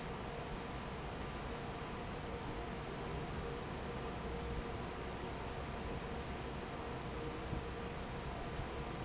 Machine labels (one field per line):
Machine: fan